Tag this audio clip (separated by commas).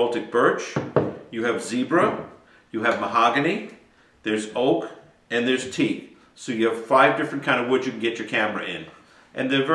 Speech